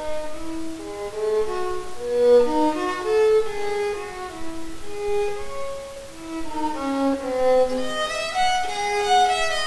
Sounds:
Music, fiddle, Musical instrument

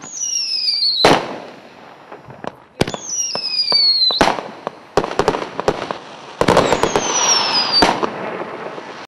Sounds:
outside, urban or man-made, Fireworks

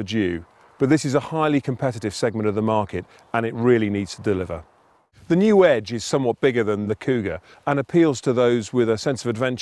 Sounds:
Speech

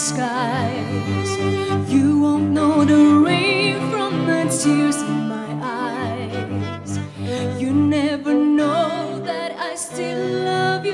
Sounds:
Music

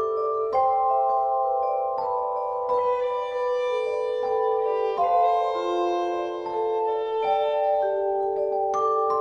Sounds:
Glockenspiel, Mallet percussion, xylophone, Bowed string instrument, Violin

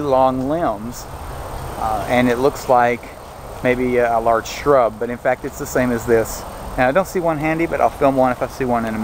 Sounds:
Speech

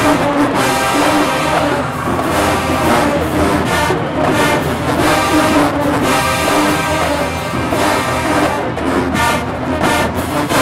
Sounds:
Music

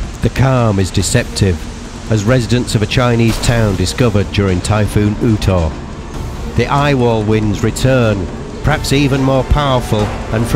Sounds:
Speech, Music, Wind noise (microphone)

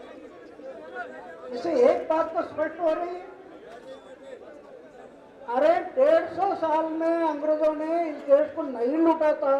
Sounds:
Male speech, Speech, monologue

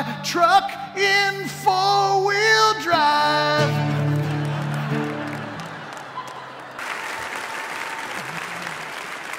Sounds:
Music

